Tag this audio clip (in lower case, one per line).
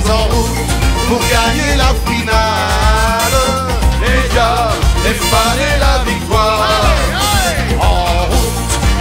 music